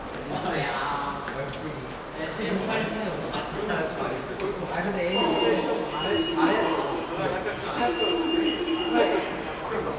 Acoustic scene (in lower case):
subway station